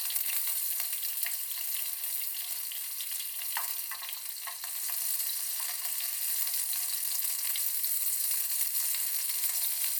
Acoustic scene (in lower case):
kitchen